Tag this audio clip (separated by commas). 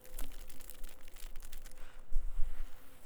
Crackle